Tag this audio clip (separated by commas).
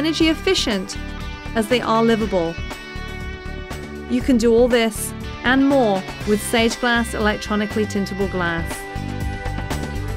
Speech, Music